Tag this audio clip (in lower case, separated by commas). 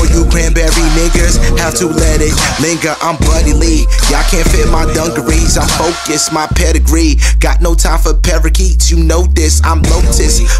pop music, music